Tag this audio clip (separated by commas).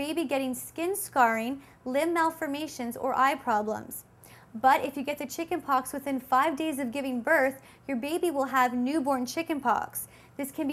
Speech